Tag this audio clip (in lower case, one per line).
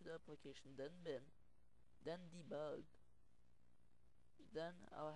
speech